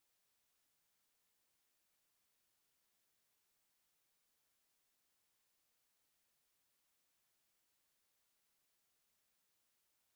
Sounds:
firing cannon

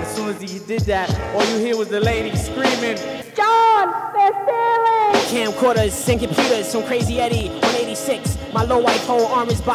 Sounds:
speech
music

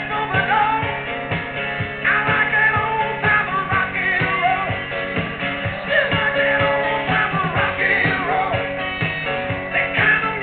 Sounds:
music

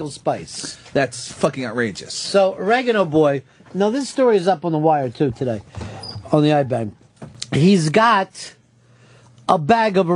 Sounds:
speech

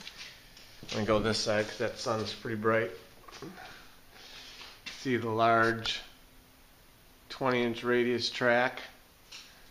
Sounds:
speech

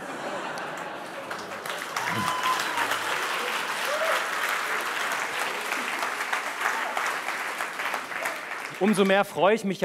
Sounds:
speech

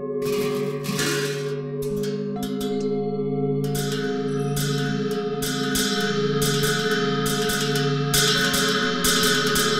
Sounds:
music

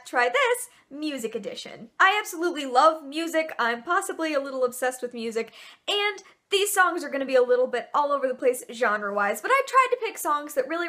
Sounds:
speech

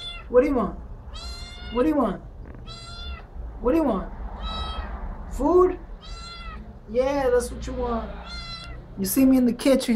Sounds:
speech
cat
pets
animal
meow

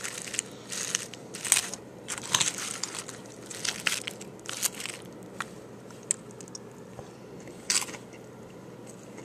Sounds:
biting
crackle
crunch

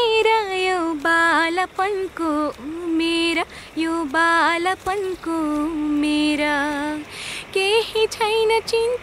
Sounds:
child singing

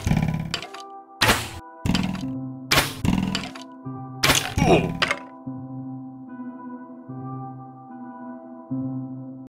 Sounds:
whack

